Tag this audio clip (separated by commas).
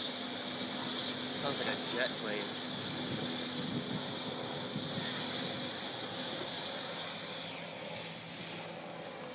Wind noise (microphone), Wind